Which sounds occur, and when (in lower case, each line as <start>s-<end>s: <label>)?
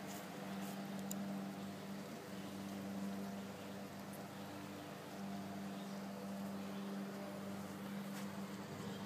0.0s-0.2s: bee or wasp
0.0s-9.0s: mechanisms
0.5s-0.7s: surface contact
0.9s-1.1s: clicking
1.6s-2.8s: surface contact
3.3s-3.7s: surface contact
4.3s-5.2s: surface contact
5.8s-6.0s: generic impact sounds
6.5s-7.3s: surface contact
7.5s-7.8s: surface contact
8.1s-8.2s: generic impact sounds
8.5s-8.6s: generic impact sounds